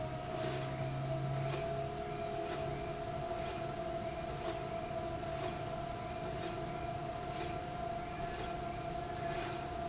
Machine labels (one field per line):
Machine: slide rail